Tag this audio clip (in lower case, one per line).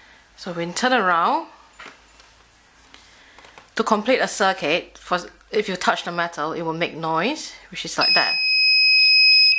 buzzer
speech